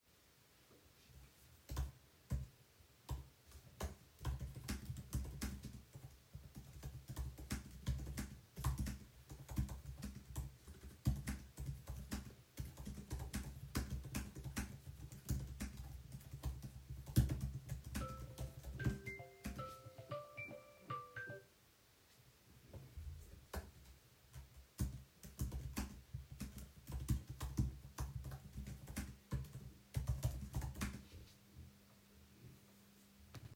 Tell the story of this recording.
I was typing on the keyboard, and the keyboard typing is audible. Then the phone started ringing, so both sounds are briefly present in the scene. The keyboard stopped for a moment, the phone ringing stopped as well, and then the keyboard typing continued.